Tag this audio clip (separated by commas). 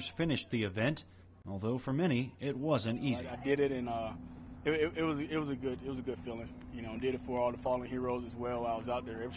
outside, urban or man-made, Run, Speech